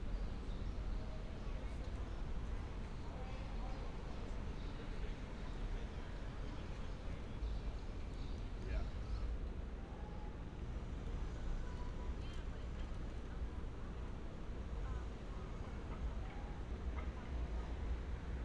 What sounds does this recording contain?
person or small group talking